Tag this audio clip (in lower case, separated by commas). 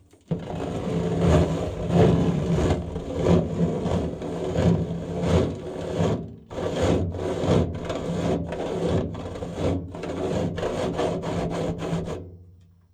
tools, sawing